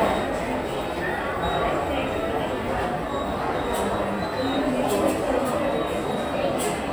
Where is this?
in a subway station